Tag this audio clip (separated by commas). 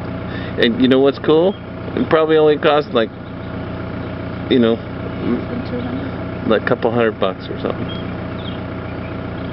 Speech